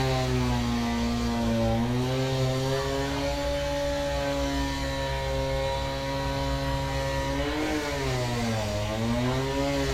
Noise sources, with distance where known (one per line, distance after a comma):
unidentified powered saw, near